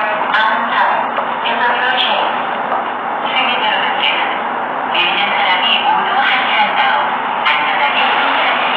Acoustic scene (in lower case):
subway station